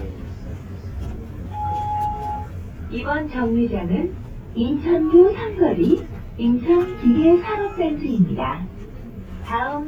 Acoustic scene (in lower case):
bus